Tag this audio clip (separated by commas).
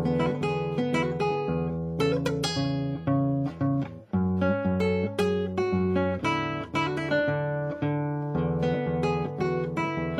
Guitar, Music, Musical instrument, Plucked string instrument